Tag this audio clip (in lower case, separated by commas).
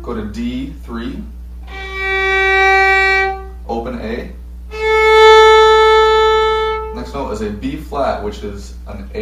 speech, fiddle, musical instrument, music